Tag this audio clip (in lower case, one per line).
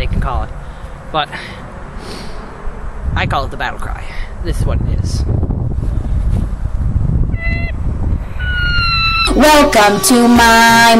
people battle cry